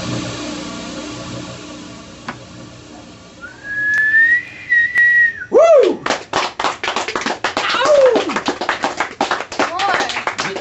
An engine is idling then a man whistles and yells out and people clap